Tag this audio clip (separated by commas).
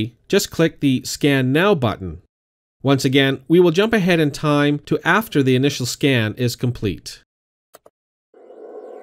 Speech